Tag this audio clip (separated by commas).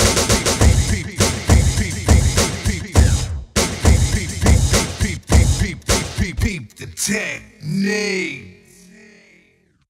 House music, Electronic music, Music